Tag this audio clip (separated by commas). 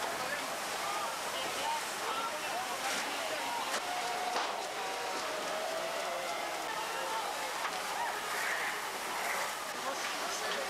lighting firecrackers